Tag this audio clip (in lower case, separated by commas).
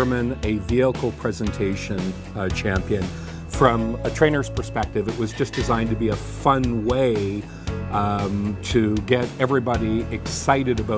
speech, music